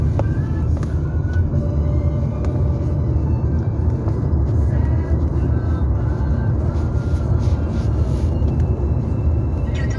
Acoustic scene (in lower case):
car